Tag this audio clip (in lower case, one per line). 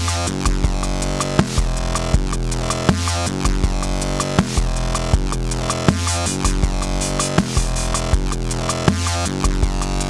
dubstep
music